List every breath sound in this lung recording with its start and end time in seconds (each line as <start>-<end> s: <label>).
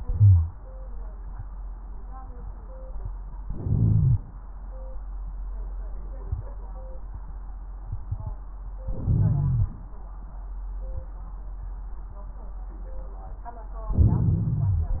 0.09-0.50 s: wheeze
3.45-4.23 s: inhalation
8.90-9.72 s: inhalation
8.90-9.72 s: wheeze
13.93-15.00 s: inhalation
13.93-15.00 s: crackles